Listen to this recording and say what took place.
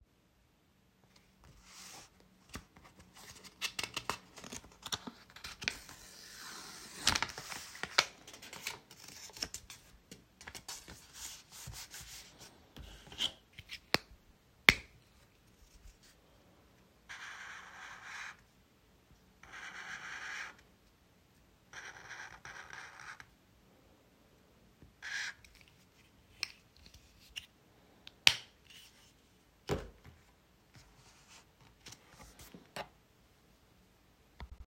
I organized notes on my desk using sticky notes and a highlighter while typing some notes.